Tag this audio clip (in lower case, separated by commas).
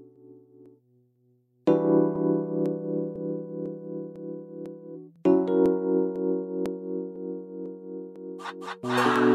music, hip hop music